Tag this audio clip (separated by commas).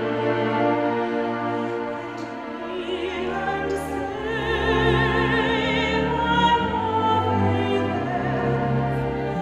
Orchestra, Musical instrument, Opera, Classical music, Music